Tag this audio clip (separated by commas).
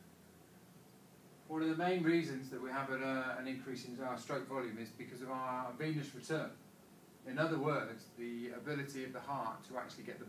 Speech